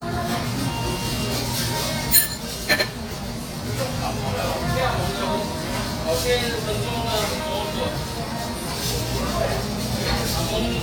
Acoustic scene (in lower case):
restaurant